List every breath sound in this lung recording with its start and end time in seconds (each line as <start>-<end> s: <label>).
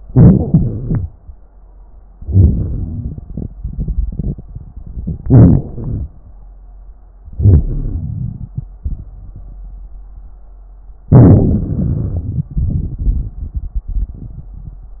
0.06-1.10 s: inhalation
2.20-3.24 s: inhalation
2.20-3.24 s: crackles
3.26-5.22 s: exhalation
5.22-5.72 s: inhalation
5.73-6.07 s: exhalation
7.23-7.66 s: inhalation
7.64-9.86 s: exhalation
11.09-12.53 s: inhalation
12.53-15.00 s: exhalation